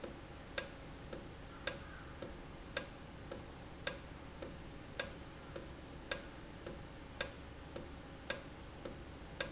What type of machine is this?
valve